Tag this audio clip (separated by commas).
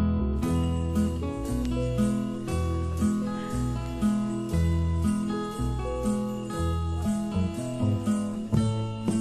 tinkle